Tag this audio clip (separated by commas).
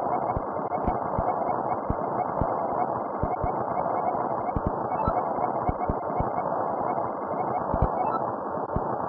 Music